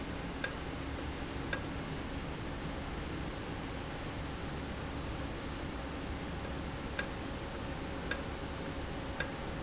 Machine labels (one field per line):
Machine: valve